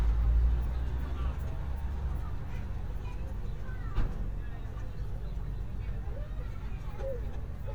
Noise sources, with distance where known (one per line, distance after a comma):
large-sounding engine
person or small group talking, near